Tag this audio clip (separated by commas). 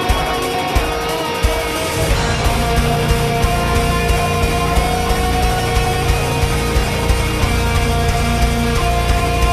Music